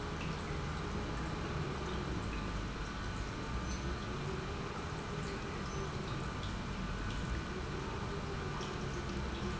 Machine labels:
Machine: pump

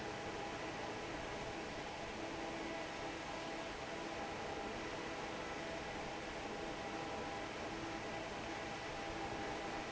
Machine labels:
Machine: fan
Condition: normal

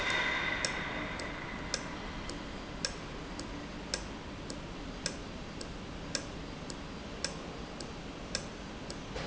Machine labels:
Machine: valve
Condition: normal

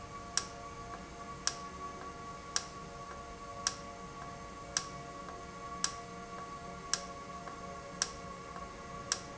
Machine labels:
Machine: valve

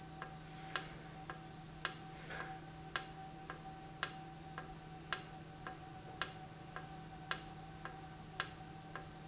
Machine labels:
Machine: valve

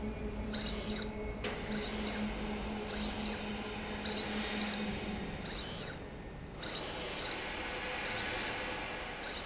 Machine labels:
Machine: slide rail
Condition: abnormal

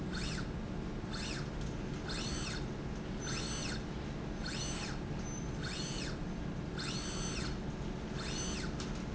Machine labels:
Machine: slide rail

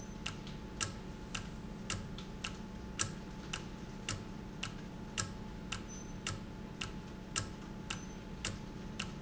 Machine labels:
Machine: valve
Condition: normal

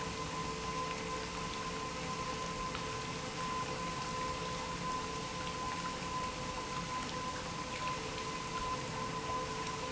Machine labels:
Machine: pump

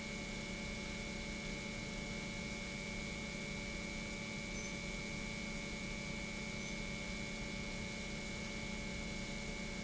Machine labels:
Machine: pump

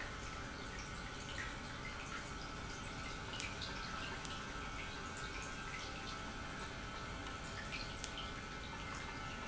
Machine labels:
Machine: pump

